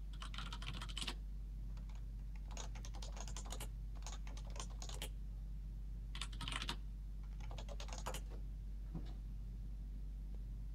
Constant typing clicks on a keyboard